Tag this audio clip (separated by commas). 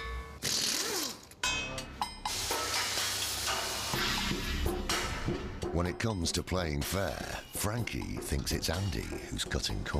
Music, Speech